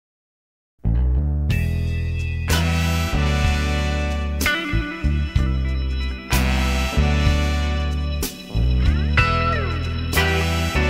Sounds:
Music, Blues

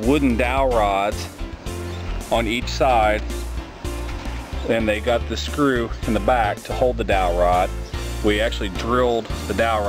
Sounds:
Music, Speech

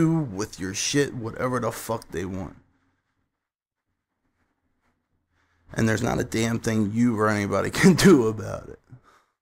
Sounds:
inside a small room, Speech

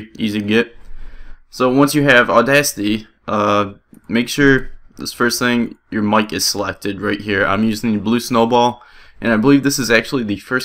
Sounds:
Speech

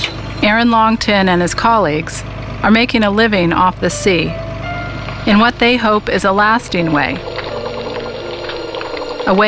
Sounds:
Speech, Music

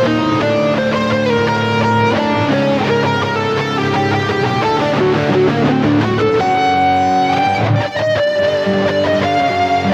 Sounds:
Plucked string instrument, Music, Musical instrument, Guitar

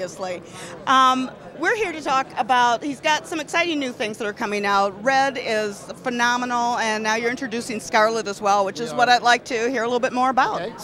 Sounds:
Speech

